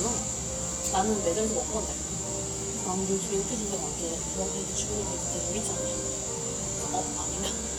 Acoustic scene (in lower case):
cafe